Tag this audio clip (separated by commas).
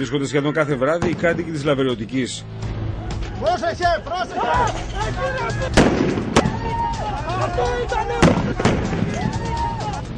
Music, Speech, Explosion